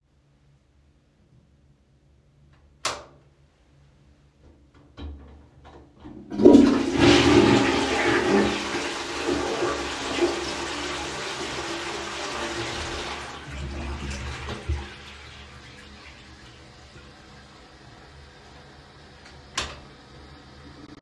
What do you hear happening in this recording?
The device was placed in the toilet room. I switched the light on, waited briefly, and then flushed the toilet.